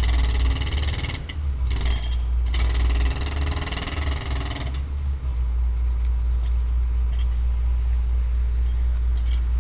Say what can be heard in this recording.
jackhammer